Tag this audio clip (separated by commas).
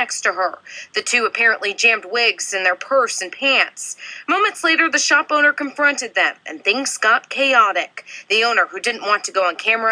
Speech